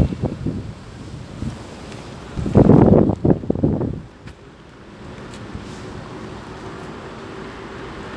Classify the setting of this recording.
street